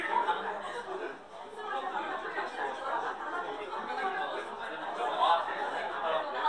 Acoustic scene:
crowded indoor space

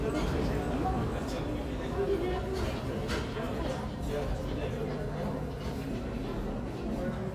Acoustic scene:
subway station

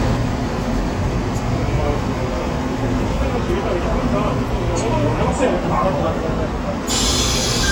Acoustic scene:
subway train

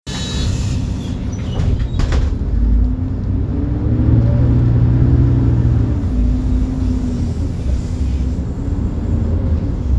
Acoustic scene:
bus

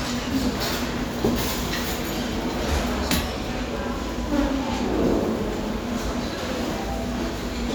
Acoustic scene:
restaurant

